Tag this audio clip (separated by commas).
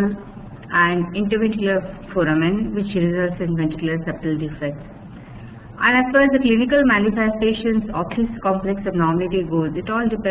Speech